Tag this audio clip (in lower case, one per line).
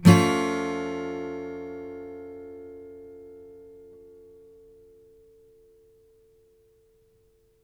guitar
acoustic guitar
music
musical instrument
plucked string instrument
strum